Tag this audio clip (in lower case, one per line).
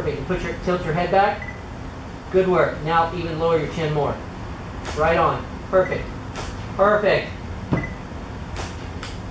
speech